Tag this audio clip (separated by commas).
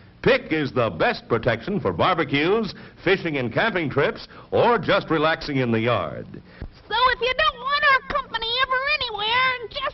Speech